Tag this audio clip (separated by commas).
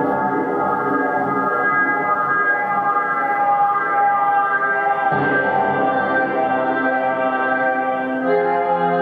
Music